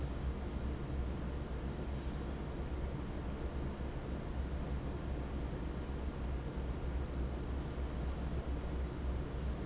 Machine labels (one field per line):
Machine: fan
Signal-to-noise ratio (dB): -6 dB